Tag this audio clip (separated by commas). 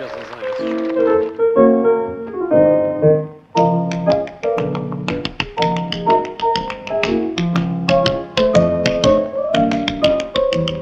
Speech, Tap, Music